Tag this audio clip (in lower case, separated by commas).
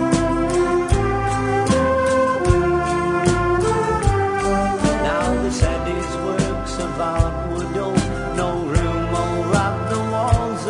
music, guitar